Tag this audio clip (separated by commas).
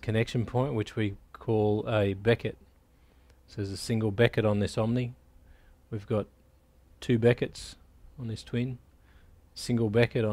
Speech